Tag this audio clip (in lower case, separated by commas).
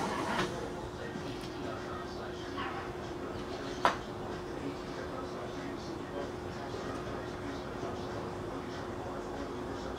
white noise, speech